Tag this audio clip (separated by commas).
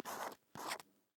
home sounds, Writing